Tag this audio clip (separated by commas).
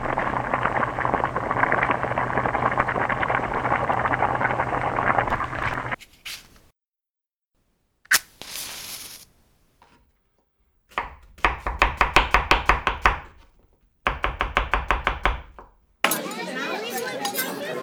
home sounds